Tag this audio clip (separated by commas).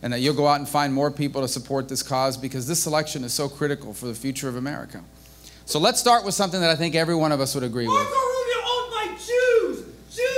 Speech, man speaking